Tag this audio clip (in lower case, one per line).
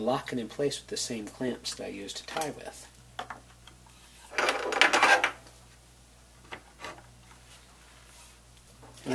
inside a small room
speech